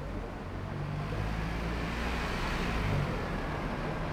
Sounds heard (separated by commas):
bus engine accelerating, bus